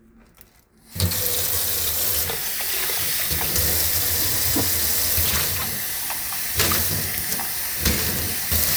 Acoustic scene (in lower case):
kitchen